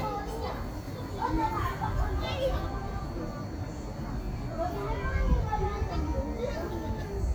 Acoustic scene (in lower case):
street